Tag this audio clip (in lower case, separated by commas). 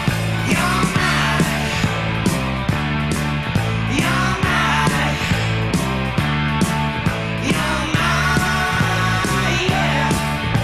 music